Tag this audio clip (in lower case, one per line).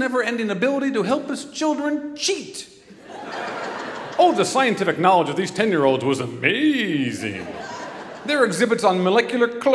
speech